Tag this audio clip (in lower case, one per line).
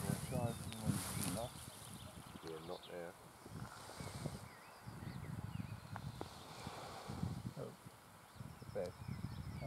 speech